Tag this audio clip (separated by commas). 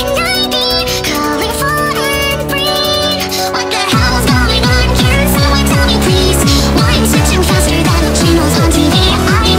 Music